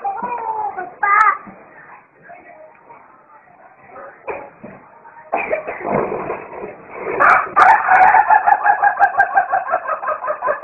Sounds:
chicken crowing
fowl
rooster
crowing

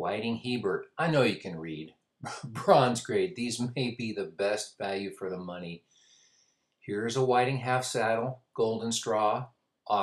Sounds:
speech

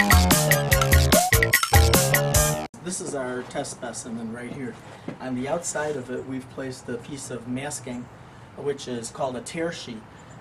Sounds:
speech
music

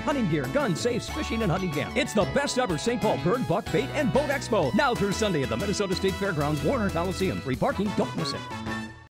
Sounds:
speech
music

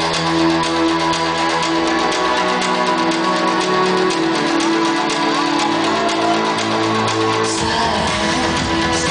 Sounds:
music

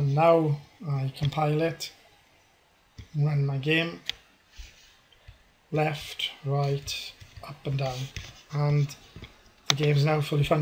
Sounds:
speech

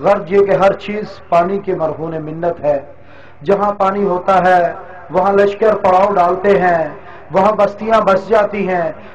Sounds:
speech

